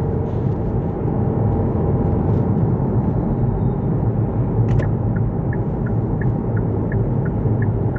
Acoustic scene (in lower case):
car